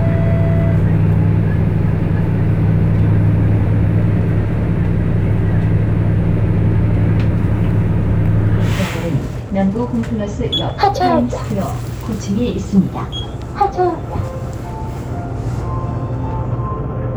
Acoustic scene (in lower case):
bus